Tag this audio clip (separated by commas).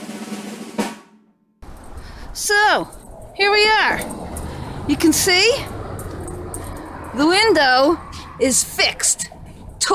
Drum roll, Speech, Vehicle, Music, outside, urban or man-made